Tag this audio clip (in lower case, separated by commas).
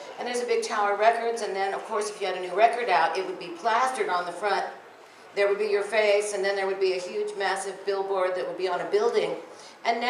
speech, woman speaking